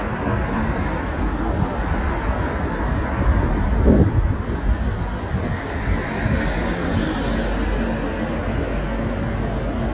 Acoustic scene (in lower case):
residential area